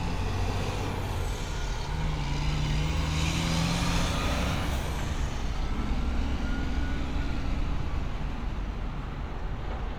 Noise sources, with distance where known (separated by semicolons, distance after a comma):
large-sounding engine, near